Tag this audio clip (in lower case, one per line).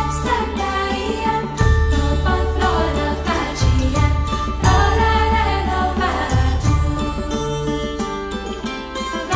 vocal music
music